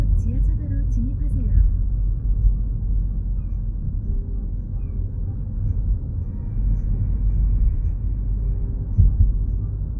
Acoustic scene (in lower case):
car